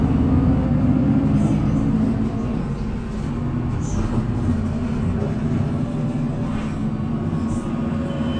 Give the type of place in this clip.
bus